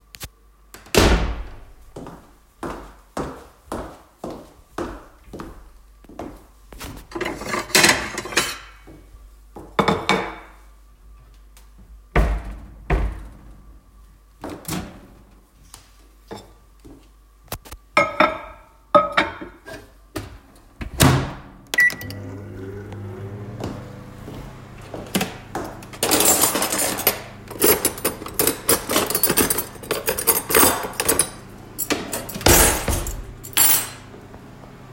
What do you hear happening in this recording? I walked into the kitchen to prepare some food, took the dishes, placed the food into the microwave and took some cutlery.